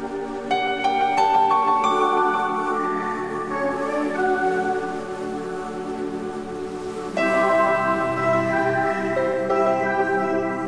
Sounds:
Music

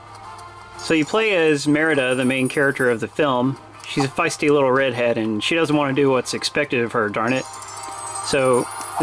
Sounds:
Speech, Music

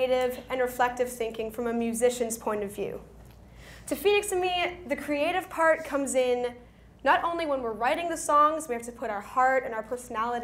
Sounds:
Speech

